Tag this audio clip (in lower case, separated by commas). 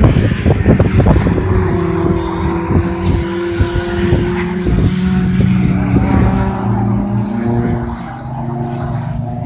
skidding